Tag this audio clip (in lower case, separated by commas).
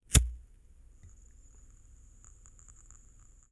fire